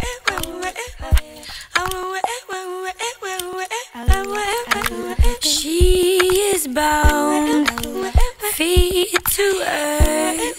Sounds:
music

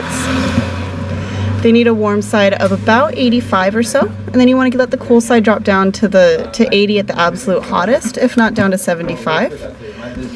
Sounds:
speech

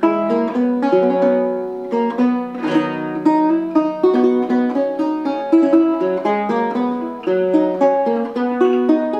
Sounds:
musical instrument
guitar
music
plucked string instrument
strum

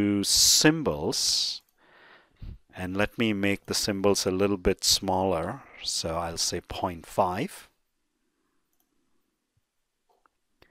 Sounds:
speech

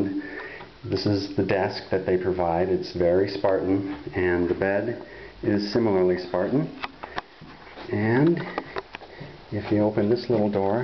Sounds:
speech

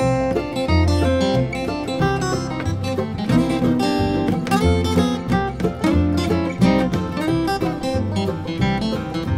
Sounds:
guitar
plucked string instrument
music
musical instrument

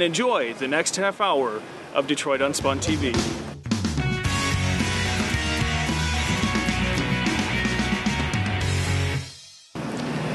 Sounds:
music
speech

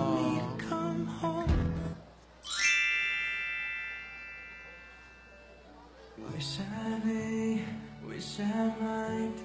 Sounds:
inside a small room
music

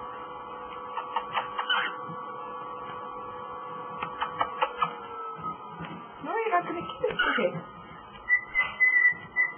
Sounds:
speech

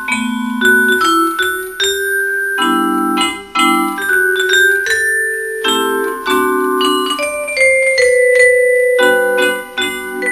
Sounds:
playing vibraphone

